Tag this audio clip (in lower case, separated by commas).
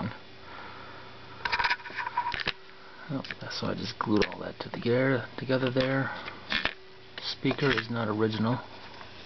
speech